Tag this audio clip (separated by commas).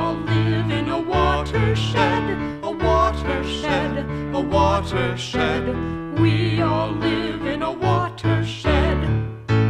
Music